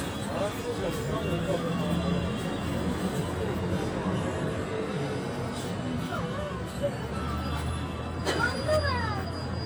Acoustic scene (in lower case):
street